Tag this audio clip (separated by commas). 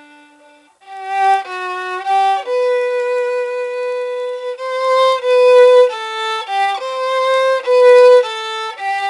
Violin, Musical instrument, Music